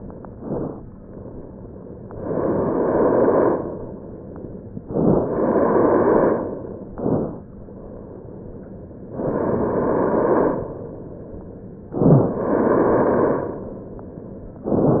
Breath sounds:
0.00-0.76 s: inhalation
2.11-3.66 s: inhalation
4.89-6.43 s: inhalation
6.96-7.43 s: inhalation
9.15-10.70 s: inhalation
11.96-13.61 s: inhalation
14.72-15.00 s: inhalation

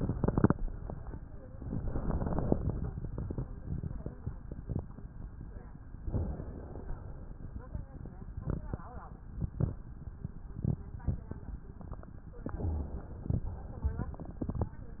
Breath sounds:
6.11-7.40 s: inhalation
12.47-13.49 s: inhalation
13.49-14.44 s: exhalation

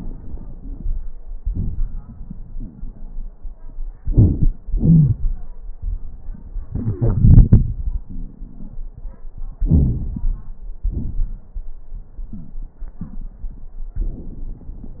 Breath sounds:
3.99-4.54 s: inhalation
3.99-4.54 s: crackles
4.65-5.45 s: exhalation
4.65-5.45 s: crackles
9.59-10.42 s: inhalation
9.59-10.42 s: crackles
10.85-11.51 s: exhalation
10.85-11.51 s: crackles

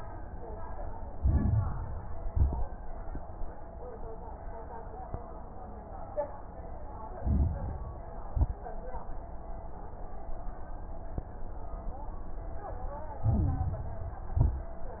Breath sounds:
1.12-2.20 s: inhalation
1.12-2.20 s: crackles
2.22-2.81 s: exhalation
2.22-2.81 s: crackles
7.14-8.23 s: inhalation
7.14-8.23 s: crackles
8.25-8.83 s: exhalation
8.25-8.83 s: crackles
13.21-14.29 s: inhalation
13.21-14.29 s: crackles
14.31-14.90 s: exhalation
14.31-14.90 s: crackles

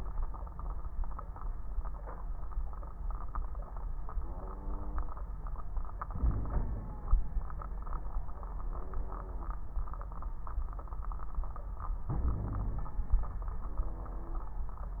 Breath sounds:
6.09-7.06 s: inhalation
6.18-6.91 s: wheeze
12.10-12.93 s: inhalation
12.22-12.93 s: wheeze

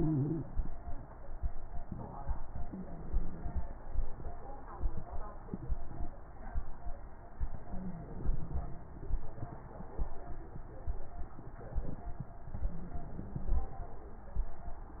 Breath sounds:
0.00-0.40 s: inhalation
0.00-0.40 s: wheeze
2.58-3.67 s: inhalation
2.58-3.67 s: wheeze
7.45-8.53 s: inhalation
7.45-8.53 s: wheeze
12.58-13.66 s: inhalation
12.58-13.66 s: wheeze

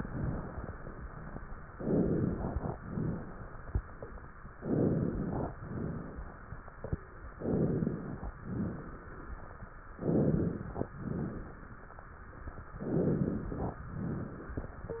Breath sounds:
1.72-2.72 s: inhalation
2.72-3.72 s: exhalation
4.54-5.55 s: inhalation
5.58-6.59 s: exhalation
7.35-8.31 s: inhalation
8.35-9.31 s: exhalation
9.93-10.89 s: inhalation
10.93-11.89 s: exhalation
12.81-13.78 s: inhalation
13.82-14.80 s: exhalation

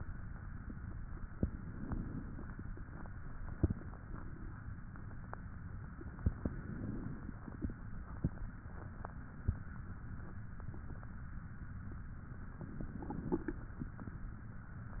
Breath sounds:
1.42-2.71 s: inhalation
1.42-2.71 s: crackles
6.34-7.63 s: inhalation
6.34-7.63 s: crackles
12.62-13.64 s: inhalation
12.62-13.64 s: crackles

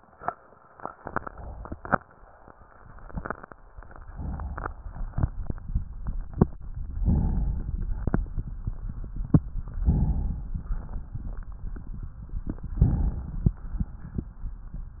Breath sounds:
1.00-1.99 s: inhalation
3.83-4.82 s: inhalation
7.02-7.65 s: inhalation
7.64-8.46 s: exhalation
9.83-10.51 s: inhalation
10.50-11.33 s: exhalation
12.66-13.46 s: inhalation

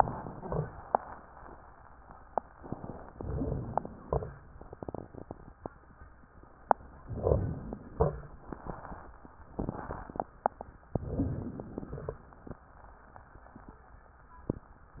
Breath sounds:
0.00-0.72 s: crackles
3.09-3.99 s: inhalation
3.09-3.99 s: rhonchi
3.99-4.51 s: exhalation
3.99-4.51 s: crackles
7.06-7.85 s: inhalation
7.06-7.85 s: rhonchi
7.85-8.54 s: exhalation
7.85-8.54 s: crackles
10.95-11.57 s: rhonchi
10.95-11.88 s: inhalation
11.90-12.31 s: exhalation
11.90-12.31 s: crackles

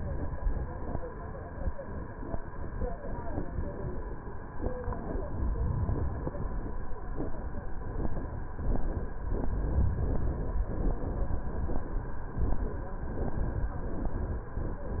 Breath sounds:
5.11-6.61 s: inhalation
9.12-10.62 s: inhalation

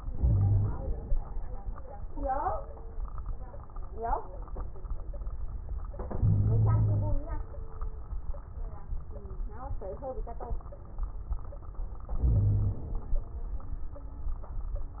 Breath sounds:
0.00-1.12 s: inhalation
0.13-0.72 s: wheeze
6.05-7.20 s: inhalation
6.16-7.20 s: wheeze
12.19-12.81 s: wheeze
12.19-13.15 s: inhalation

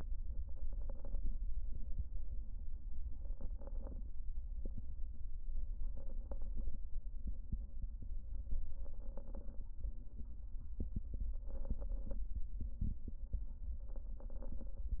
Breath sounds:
0.36-1.35 s: inhalation
0.36-1.35 s: crackles
3.13-4.12 s: inhalation
3.13-4.12 s: crackles
5.84-6.83 s: inhalation
5.84-6.83 s: crackles
8.71-9.70 s: inhalation
8.71-9.70 s: crackles
11.38-12.37 s: inhalation
11.38-12.37 s: crackles
13.89-14.88 s: inhalation
13.89-14.88 s: crackles

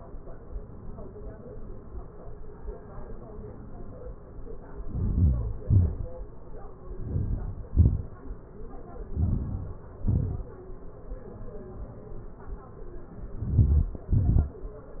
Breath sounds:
4.89-5.46 s: inhalation
5.69-6.08 s: exhalation
7.09-7.67 s: inhalation
7.79-8.19 s: exhalation
9.15-9.83 s: inhalation
10.08-10.54 s: exhalation
13.49-14.09 s: inhalation
14.16-14.62 s: exhalation

